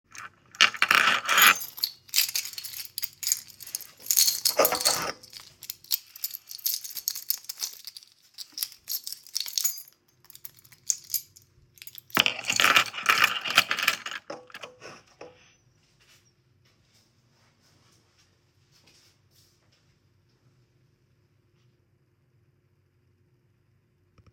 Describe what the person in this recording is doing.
I picked up my keychain and played with it before putting it back on the table. Someone was walking in the distance.